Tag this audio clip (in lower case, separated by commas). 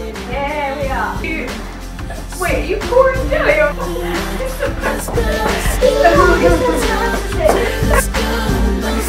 music, speech